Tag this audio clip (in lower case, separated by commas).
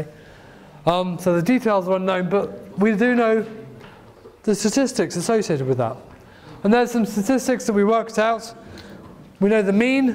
speech